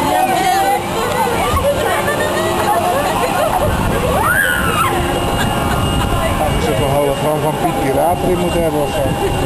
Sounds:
speech

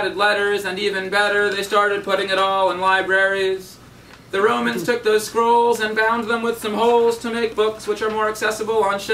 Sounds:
speech

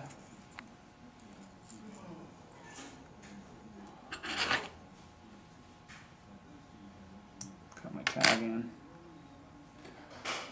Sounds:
speech

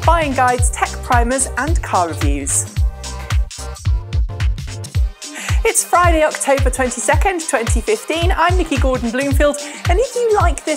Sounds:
music, speech

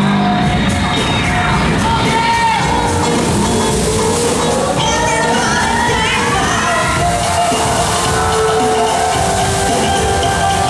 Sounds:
water, music

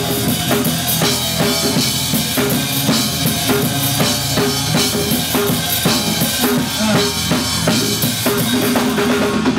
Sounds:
rimshot, music

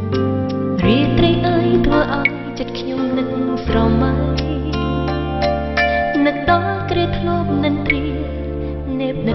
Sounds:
music

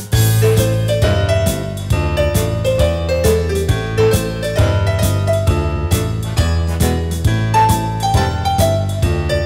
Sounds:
music

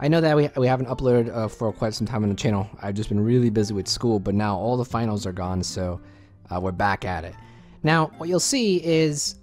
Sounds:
music, speech

